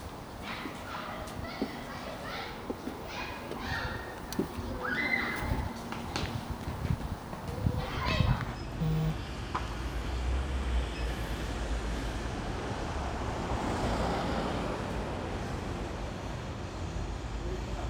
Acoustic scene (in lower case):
residential area